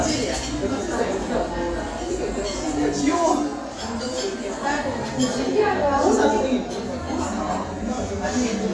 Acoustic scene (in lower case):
crowded indoor space